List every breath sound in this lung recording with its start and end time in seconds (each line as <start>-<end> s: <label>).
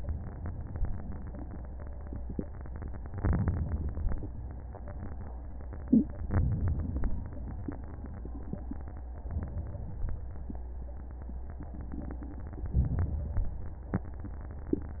3.19-4.00 s: inhalation
6.28-7.08 s: inhalation
9.28-10.09 s: inhalation
12.74-13.55 s: inhalation